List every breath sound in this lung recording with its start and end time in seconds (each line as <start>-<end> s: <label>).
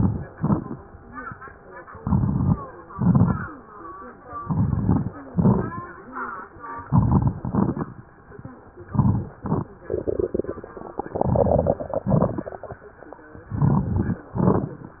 0.00-0.32 s: inhalation
0.32-0.78 s: exhalation
0.32-0.78 s: crackles
2.01-2.58 s: inhalation
2.01-2.58 s: crackles
2.94-3.51 s: exhalation
2.94-3.51 s: crackles
4.40-5.14 s: inhalation
4.40-5.14 s: crackles
5.33-5.83 s: exhalation
5.33-5.83 s: crackles
6.89-7.38 s: inhalation
6.89-7.38 s: crackles
7.44-7.93 s: exhalation
7.44-7.93 s: crackles
8.86-9.36 s: inhalation
8.86-9.36 s: crackles
9.43-9.79 s: exhalation
9.43-9.79 s: crackles
11.18-11.79 s: inhalation
11.97-12.59 s: exhalation
13.49-14.19 s: inhalation
13.49-14.19 s: crackles
14.38-15.00 s: exhalation
14.38-15.00 s: crackles